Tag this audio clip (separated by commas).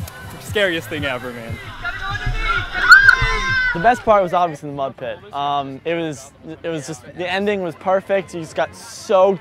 Music, Speech